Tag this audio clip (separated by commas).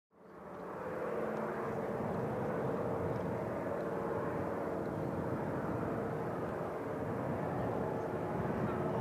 Vehicle